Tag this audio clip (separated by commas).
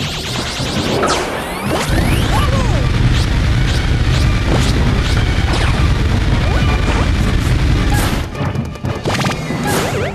Smash